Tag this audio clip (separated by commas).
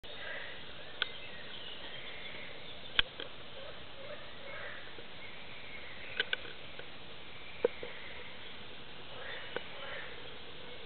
Animal